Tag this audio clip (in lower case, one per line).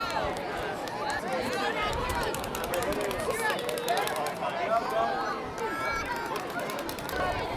crowd
human group actions